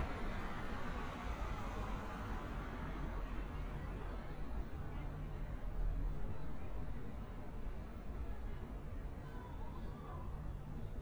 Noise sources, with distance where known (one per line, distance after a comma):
engine of unclear size
person or small group talking, far